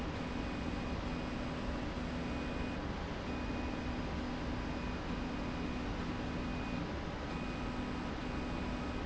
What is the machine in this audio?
slide rail